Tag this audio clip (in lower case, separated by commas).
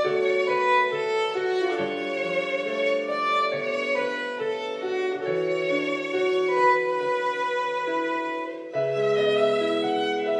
musical instrument, violin, music